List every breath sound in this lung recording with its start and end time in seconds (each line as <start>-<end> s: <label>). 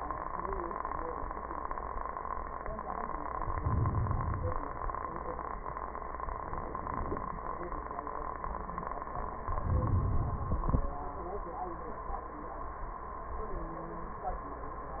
3.32-4.62 s: inhalation
9.46-11.05 s: inhalation